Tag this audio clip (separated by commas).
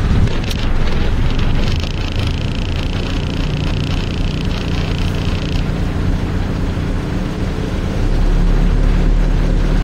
Engine, Vehicle, Medium engine (mid frequency)